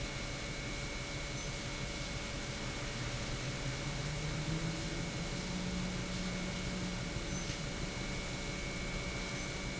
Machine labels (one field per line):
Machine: pump